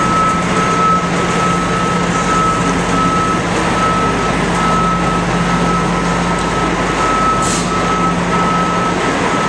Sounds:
reversing beeps
vehicle

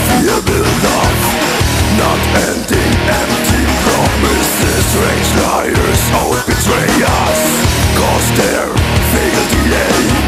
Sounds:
rock music
heavy metal
angry music
music

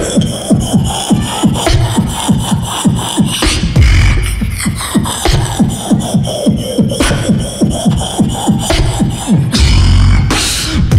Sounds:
beat boxing

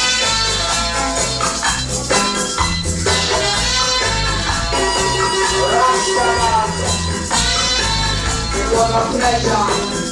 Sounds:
music

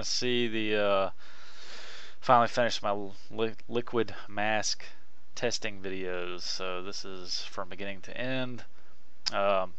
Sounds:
speech

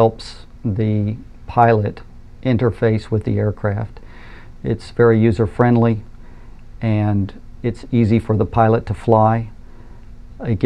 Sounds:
speech

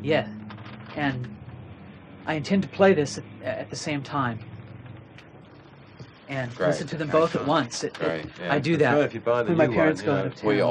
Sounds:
speech

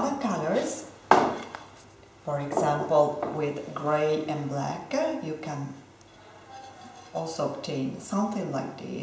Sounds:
speech

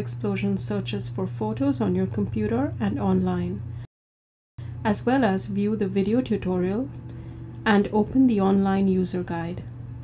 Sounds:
speech

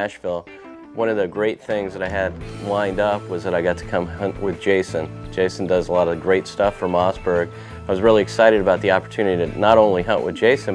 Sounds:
speech
music

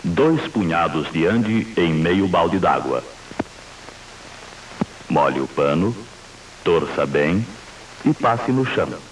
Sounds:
speech

